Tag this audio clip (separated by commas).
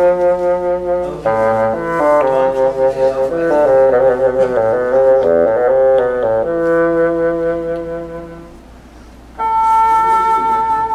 playing bassoon